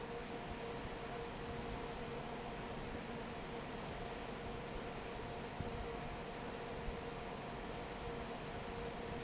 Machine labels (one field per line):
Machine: fan